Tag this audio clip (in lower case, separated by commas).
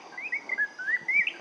wild animals, animal, bird